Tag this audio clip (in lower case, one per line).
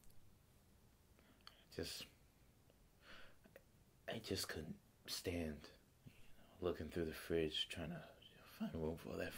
speech
monologue